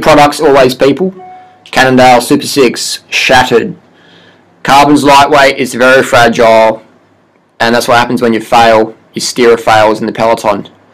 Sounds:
speech

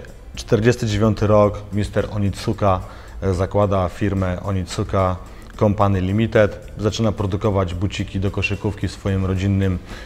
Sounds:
music, speech

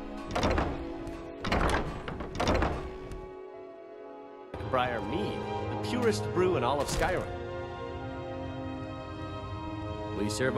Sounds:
speech, music, male speech

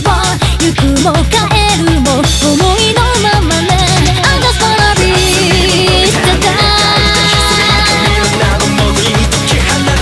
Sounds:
music

